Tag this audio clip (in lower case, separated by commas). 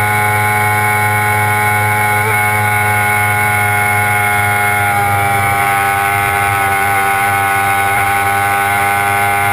car, vehicle, motor vehicle (road)